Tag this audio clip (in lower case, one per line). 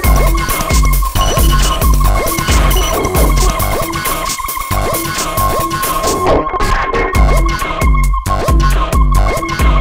music